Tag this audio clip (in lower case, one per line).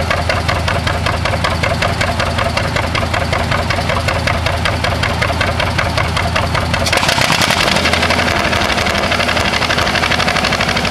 vehicle